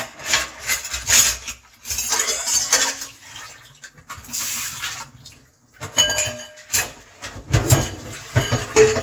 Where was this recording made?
in a kitchen